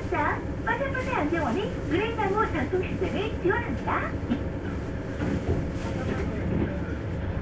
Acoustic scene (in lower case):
bus